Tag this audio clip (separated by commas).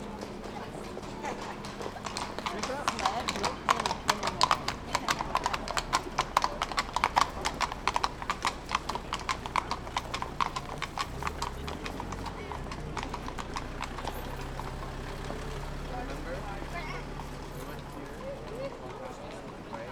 livestock, Animal